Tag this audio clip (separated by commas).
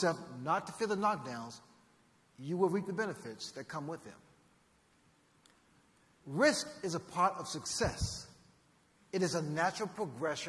Male speech, Narration, Speech